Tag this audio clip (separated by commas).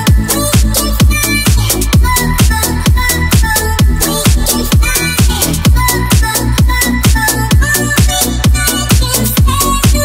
Electronic dance music, Music